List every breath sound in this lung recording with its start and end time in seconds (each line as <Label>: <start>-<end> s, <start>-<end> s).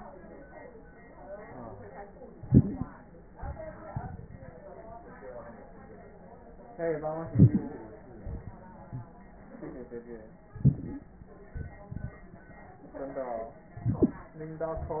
Inhalation: 2.35-3.02 s, 7.30-7.97 s, 10.51-11.04 s, 13.81-14.34 s
Exhalation: 3.28-4.54 s, 8.14-9.07 s, 11.54-12.47 s
Crackles: 10.51-11.04 s, 11.54-12.47 s